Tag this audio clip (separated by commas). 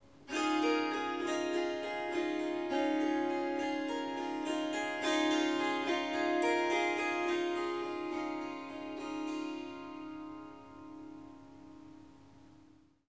Music, Musical instrument, Harp